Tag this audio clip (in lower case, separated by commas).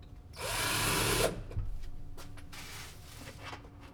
tools